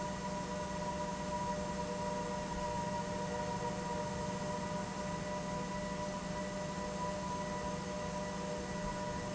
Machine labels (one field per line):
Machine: pump